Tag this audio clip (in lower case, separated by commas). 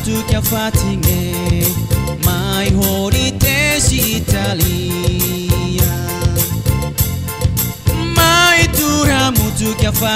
music